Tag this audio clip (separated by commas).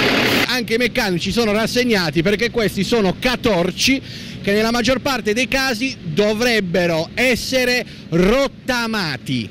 Speech, Vehicle